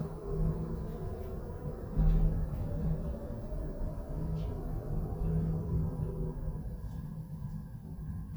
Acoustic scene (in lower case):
elevator